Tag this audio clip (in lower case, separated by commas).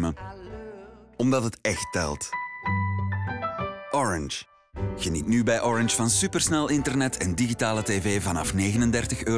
music, speech